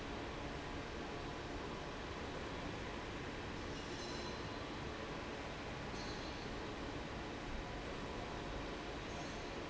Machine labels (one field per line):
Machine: fan